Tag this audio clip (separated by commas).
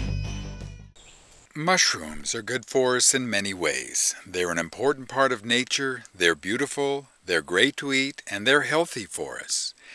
Narration, Music, Speech